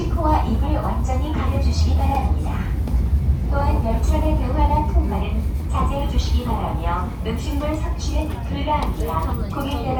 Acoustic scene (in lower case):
subway train